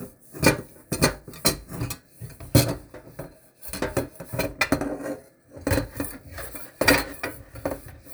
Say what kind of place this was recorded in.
kitchen